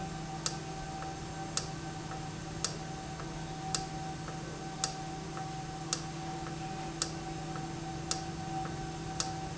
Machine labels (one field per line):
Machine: valve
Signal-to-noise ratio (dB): -6 dB